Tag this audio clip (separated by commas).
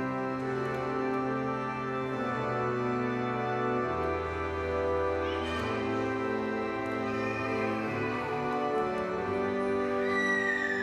Speech, Music